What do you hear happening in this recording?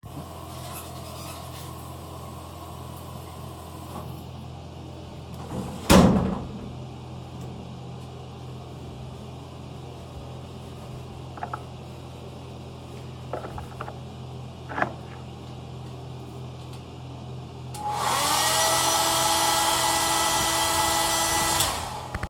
I took a shower, then got out of the shower cubicle, dried myself with a towel, and then used a hairdryer to dry my hair.